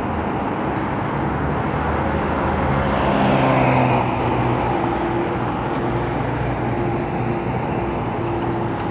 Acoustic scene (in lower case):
street